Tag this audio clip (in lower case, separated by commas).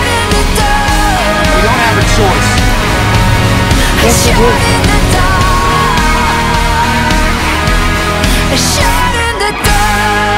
angry music, music, speech